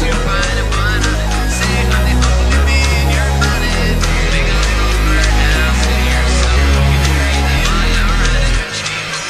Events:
[0.00, 9.25] male singing
[0.00, 9.25] music

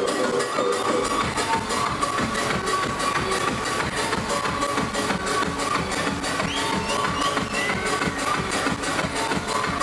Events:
[0.00, 9.82] crowd
[0.00, 9.82] music
[6.40, 7.67] whistling

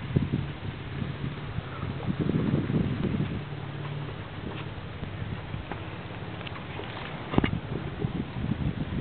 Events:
[0.00, 1.53] wind noise (microphone)
[0.00, 9.00] wind
[1.56, 1.85] bird call
[1.73, 3.50] wind noise (microphone)
[2.96, 3.31] generic impact sounds
[3.74, 3.93] generic impact sounds
[4.51, 4.77] generic impact sounds
[4.98, 5.62] wind noise (microphone)
[5.58, 5.79] generic impact sounds
[6.44, 7.48] generic impact sounds
[7.45, 9.00] wind noise (microphone)

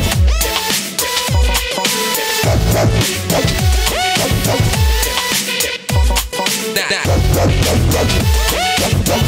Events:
[0.00, 9.25] music
[1.25, 1.88] male singing
[5.50, 6.49] male singing
[6.77, 7.17] male singing

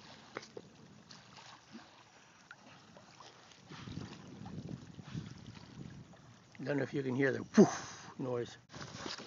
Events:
[0.00, 8.61] canoe
[0.00, 8.62] wind
[0.00, 8.64] water
[0.32, 0.42] generic impact sounds
[0.54, 0.61] generic impact sounds
[1.66, 1.95] breathing
[1.67, 1.79] generic impact sounds
[2.10, 2.43] breathing
[2.42, 2.55] generic impact sounds
[3.09, 3.52] breathing
[3.57, 6.02] wind noise (microphone)
[3.64, 4.17] breathing
[5.01, 5.28] breathing
[6.49, 6.60] generic impact sounds
[6.58, 7.45] male speech
[7.52, 8.11] human voice
[8.15, 8.54] male speech
[8.68, 9.25] canoe
[8.69, 9.25] water
[8.69, 9.25] wind

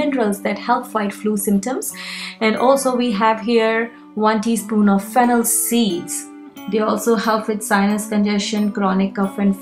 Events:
[0.00, 9.61] music
[0.01, 1.82] female speech
[2.39, 3.90] female speech
[4.18, 5.46] female speech
[5.62, 6.07] female speech
[6.63, 9.61] female speech

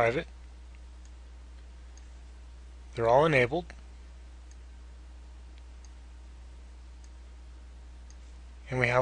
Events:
[0.00, 0.24] man speaking
[0.00, 9.01] background noise
[0.41, 0.54] tick
[0.71, 0.80] tick
[1.00, 1.17] tick
[1.49, 1.65] tick
[1.87, 2.09] tick
[2.95, 3.68] man speaking
[3.67, 3.80] tick
[4.44, 4.59] tick
[5.50, 5.65] tick
[5.81, 6.02] tick
[6.96, 7.19] tick
[8.10, 8.20] tick

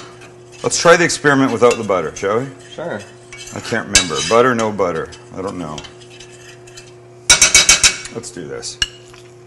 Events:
[0.00, 0.28] dishes, pots and pans
[0.00, 9.45] mechanisms
[0.48, 6.89] dishes, pots and pans
[0.61, 8.77] conversation
[0.61, 2.49] man speaking
[2.72, 3.11] man speaking
[3.50, 5.05] man speaking
[5.31, 5.86] man speaking
[7.28, 9.15] dishes, pots and pans
[8.14, 8.76] man speaking

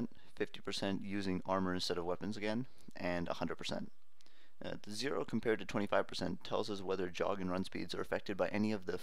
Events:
[0.00, 2.62] man speaking
[0.00, 9.02] background noise
[2.91, 3.88] man speaking
[4.17, 4.58] breathing
[4.59, 9.02] man speaking

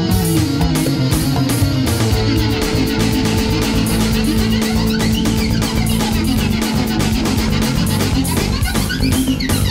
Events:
[0.00, 9.70] music

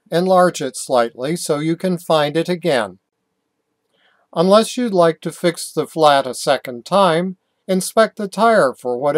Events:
[0.01, 9.15] noise
[0.03, 2.87] male speech
[4.30, 7.34] male speech
[7.61, 9.15] male speech

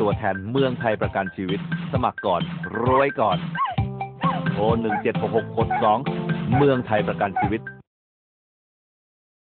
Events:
[0.00, 3.33] man speaking
[0.00, 7.87] music
[3.52, 3.73] animal
[4.18, 4.43] animal
[4.18, 7.58] man speaking
[4.87, 5.02] animal
[5.70, 5.97] animal
[6.48, 6.67] animal
[7.29, 7.49] animal

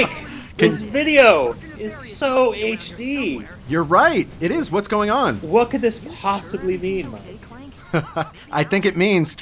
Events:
[0.00, 0.22] male speech
[0.00, 9.41] conversation
[0.00, 9.41] mechanisms
[0.07, 0.59] woman speaking
[0.58, 7.14] male speech
[7.07, 8.43] woman speaking
[7.89, 8.32] laughter
[8.54, 9.41] male speech

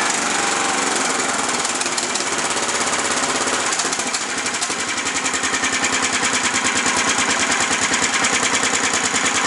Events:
[0.00, 9.45] medium engine (mid frequency)

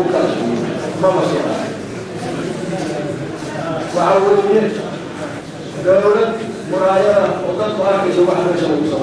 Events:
[0.00, 9.02] speech babble
[0.00, 9.02] mechanisms
[0.96, 1.70] man speaking
[2.09, 2.38] walk
[2.69, 2.99] walk
[3.31, 3.58] walk
[3.80, 4.17] walk
[3.91, 5.19] man speaking
[5.72, 9.02] man speaking

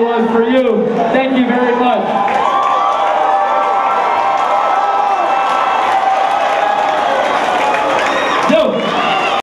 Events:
[0.01, 9.42] crowd
[0.06, 0.69] man speaking
[0.87, 2.02] man speaking
[8.19, 8.77] man speaking

